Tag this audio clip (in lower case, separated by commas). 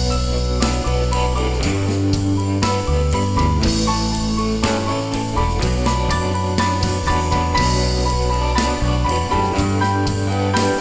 music, musical instrument, guitar